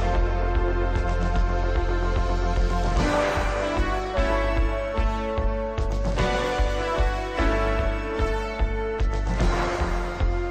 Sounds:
Music

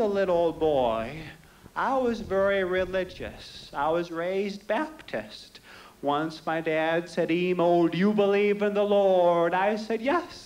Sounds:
Male speech

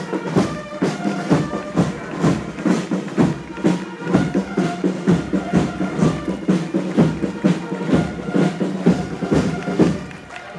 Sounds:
Music, outside, urban or man-made

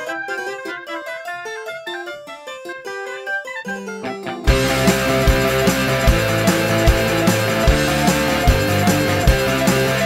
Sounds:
Music

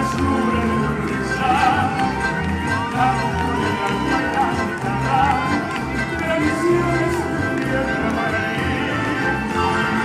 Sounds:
Singing, Music of Latin America, Music

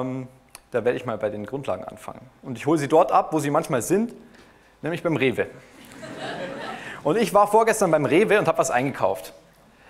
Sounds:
Speech

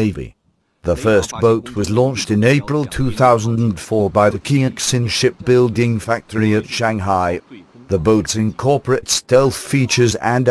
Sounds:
Speech

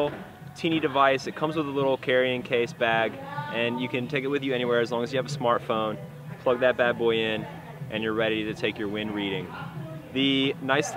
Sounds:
Speech, Music

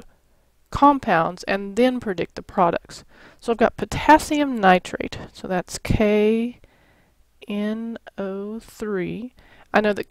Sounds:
Speech

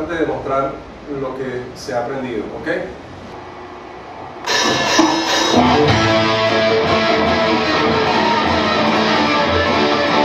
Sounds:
Acoustic guitar, Speech, Music, Musical instrument, Guitar, Strum, Plucked string instrument, Electric guitar

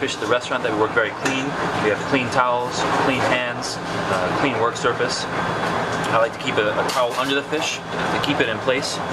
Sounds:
inside a small room, Speech

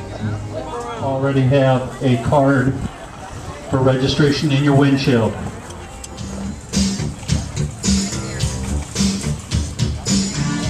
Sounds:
Music, Speech

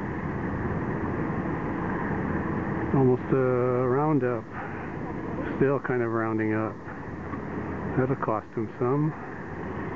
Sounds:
Vehicle, Speech

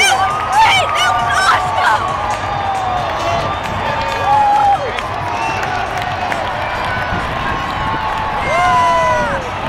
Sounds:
Music, Speech

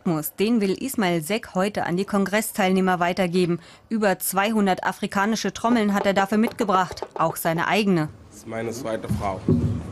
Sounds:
Speech

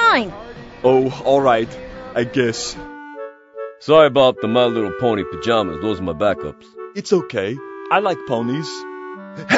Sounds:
Music, Speech, inside a small room

